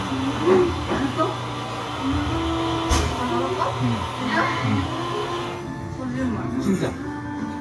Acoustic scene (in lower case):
cafe